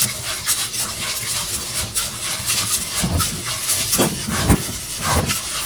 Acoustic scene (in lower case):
kitchen